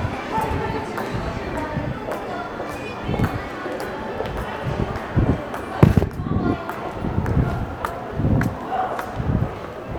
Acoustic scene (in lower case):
crowded indoor space